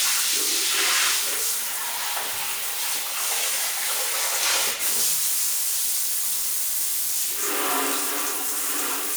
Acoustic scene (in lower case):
restroom